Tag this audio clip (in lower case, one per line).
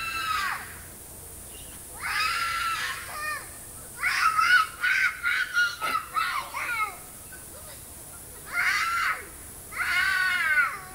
screaming